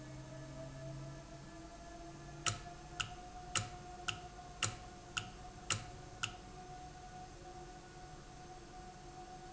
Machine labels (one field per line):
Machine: valve